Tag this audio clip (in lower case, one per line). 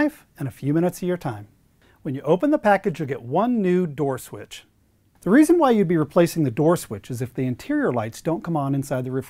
speech